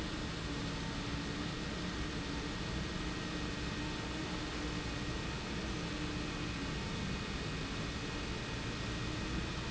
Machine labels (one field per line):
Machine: pump